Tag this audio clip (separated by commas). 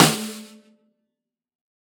Snare drum, Music, Drum, Musical instrument, Percussion